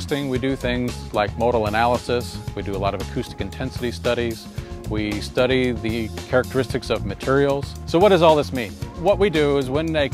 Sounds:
music
speech

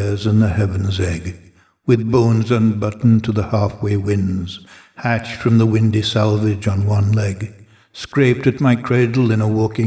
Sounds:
speech

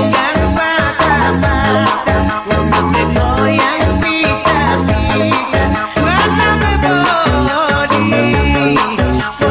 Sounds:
music

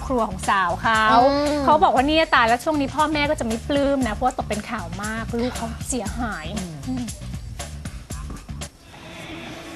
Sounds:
music
speech

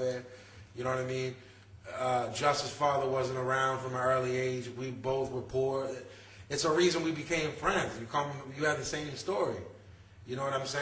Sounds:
speech

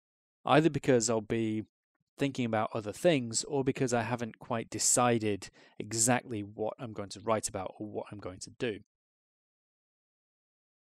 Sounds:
speech

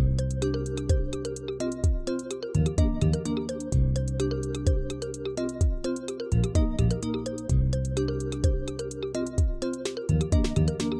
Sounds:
video game music
music
theme music

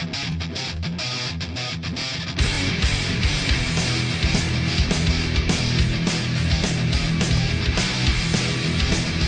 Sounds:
music

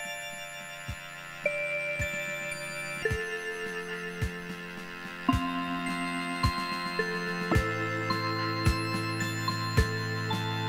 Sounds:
music

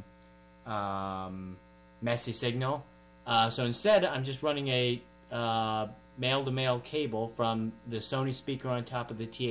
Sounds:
speech

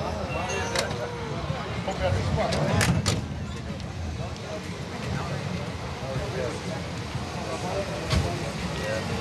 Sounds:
speech
vehicle

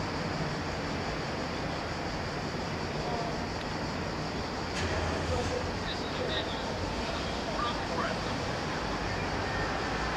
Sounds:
speech

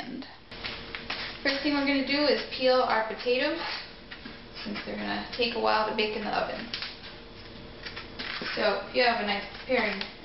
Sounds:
speech

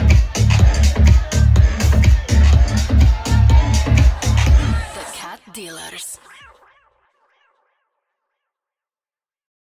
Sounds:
music
speech

